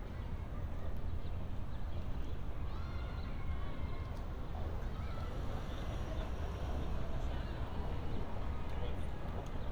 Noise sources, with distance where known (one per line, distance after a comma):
person or small group shouting